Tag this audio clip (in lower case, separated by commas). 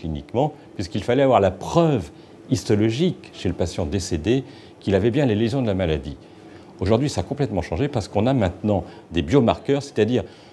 speech